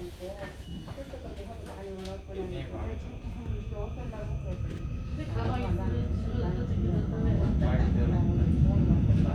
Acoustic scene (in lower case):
subway train